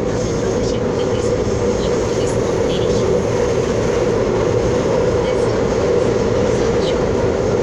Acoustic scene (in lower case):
subway train